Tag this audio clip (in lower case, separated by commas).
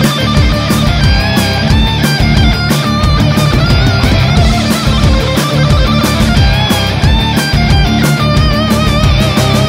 heavy metal, music